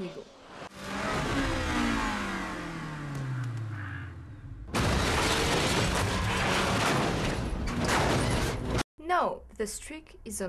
A car engine is revving and the car is crashing and a woman speaks